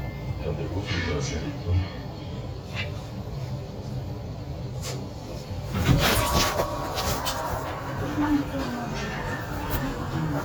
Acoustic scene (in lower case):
elevator